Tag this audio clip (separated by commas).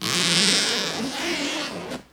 Domestic sounds, Zipper (clothing)